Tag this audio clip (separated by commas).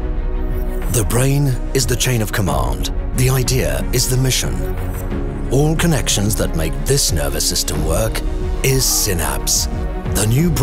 Music, Speech